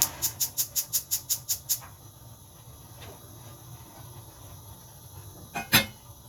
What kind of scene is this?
kitchen